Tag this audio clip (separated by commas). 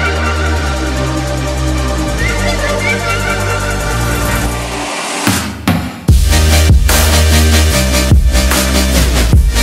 Music